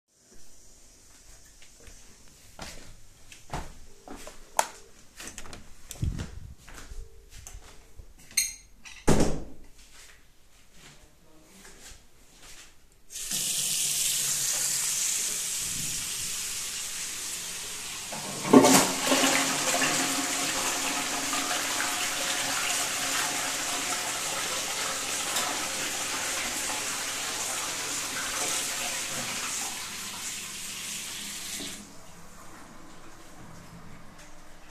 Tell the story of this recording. I open the door, closed it, walk, open the tap, flush the toilet